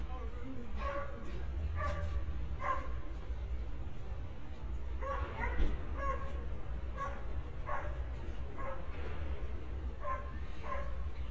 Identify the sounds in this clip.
dog barking or whining